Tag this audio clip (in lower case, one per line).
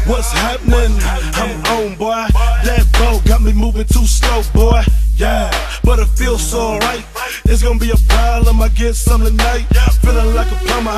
music